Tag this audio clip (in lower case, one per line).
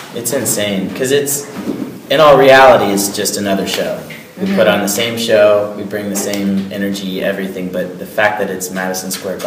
speech